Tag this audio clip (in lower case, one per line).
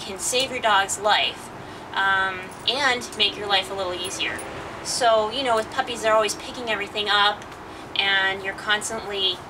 speech